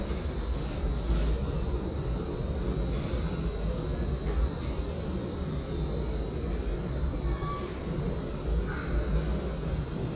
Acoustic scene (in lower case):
subway station